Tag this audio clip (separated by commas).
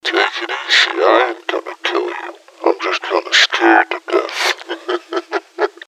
Human voice, Laughter